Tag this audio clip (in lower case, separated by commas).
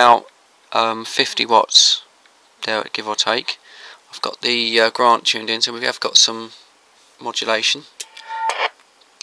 inside a small room, speech, radio